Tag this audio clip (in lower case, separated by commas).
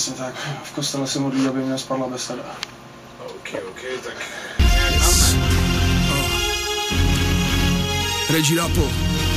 speech, music